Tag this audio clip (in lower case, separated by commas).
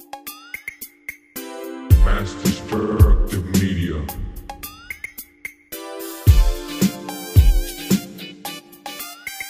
hip hop music, music